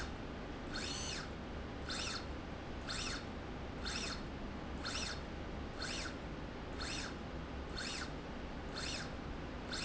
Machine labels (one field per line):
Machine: slide rail